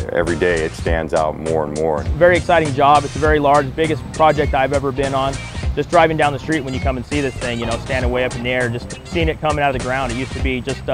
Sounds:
Music, Speech

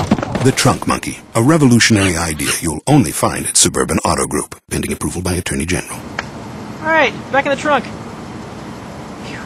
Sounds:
Speech

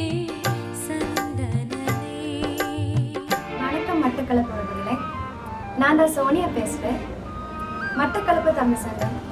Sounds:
Speech, Soundtrack music, Traditional music, Music

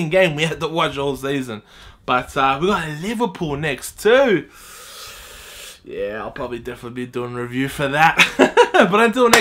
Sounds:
inside a small room, Speech

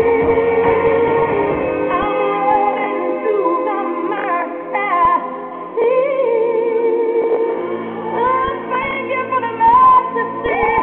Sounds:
Music

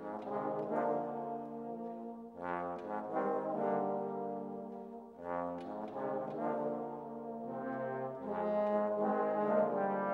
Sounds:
Music

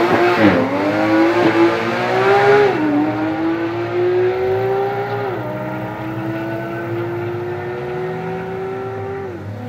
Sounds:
Medium engine (mid frequency), Vehicle, Car, revving

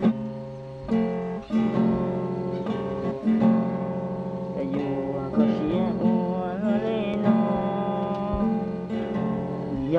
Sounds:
Strum, Music

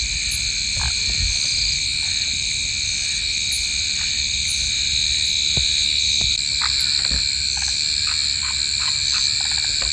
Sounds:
Frog

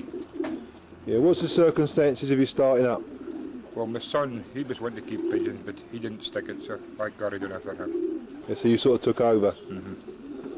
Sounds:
Bird, dove, bird song, Coo, tweet

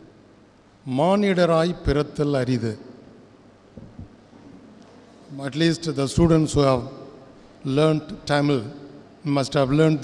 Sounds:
Speech, Narration, Male speech

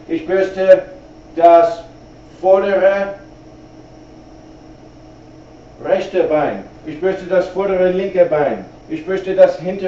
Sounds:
Speech

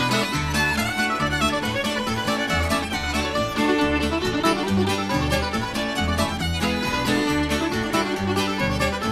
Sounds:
Country, playing banjo, Music, Banjo, Mandolin, Bluegrass

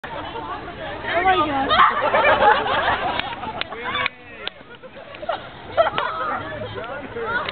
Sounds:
Speech

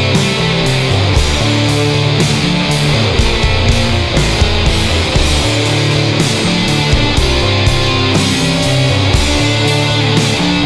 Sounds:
Music

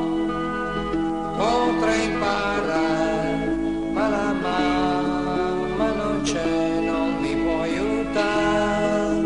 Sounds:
Music

